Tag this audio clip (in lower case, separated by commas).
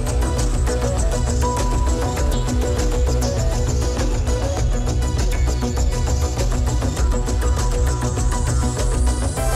music